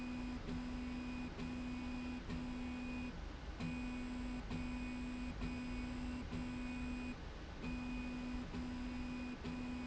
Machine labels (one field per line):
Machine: slide rail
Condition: normal